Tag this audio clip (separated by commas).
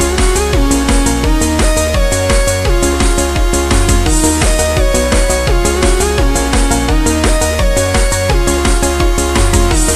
Music